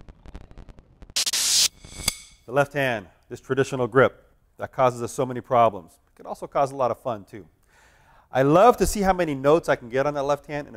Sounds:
Speech

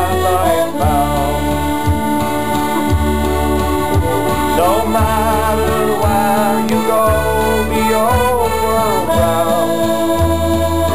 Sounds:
Music

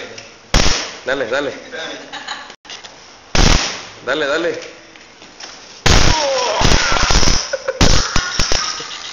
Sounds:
Printer, Speech

